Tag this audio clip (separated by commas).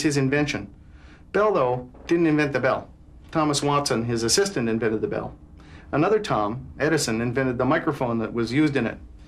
Speech